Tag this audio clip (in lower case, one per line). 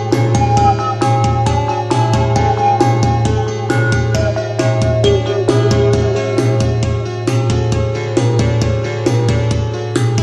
music